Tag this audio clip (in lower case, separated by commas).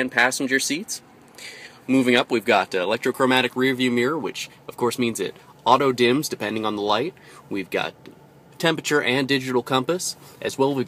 speech